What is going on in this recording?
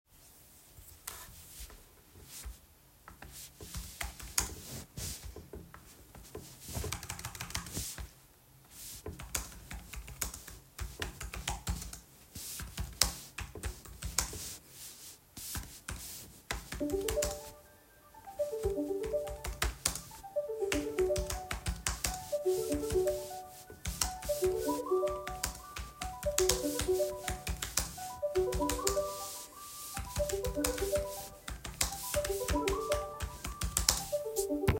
I put the phone on the table and started typing for some seconds then the phone started ringing, I kept typing for few seconds while the phone is still ringing then I stopped recording